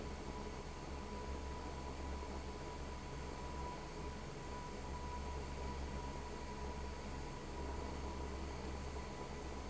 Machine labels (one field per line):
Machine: fan